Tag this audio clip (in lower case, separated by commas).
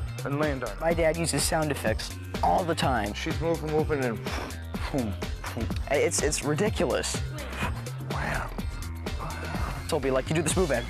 speech, music